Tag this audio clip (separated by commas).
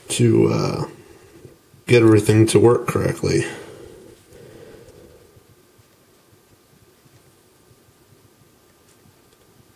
Speech